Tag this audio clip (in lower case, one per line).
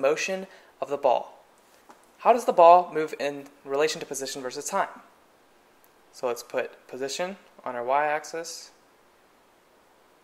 speech